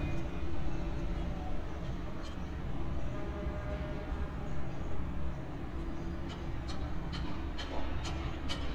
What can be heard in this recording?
non-machinery impact, car horn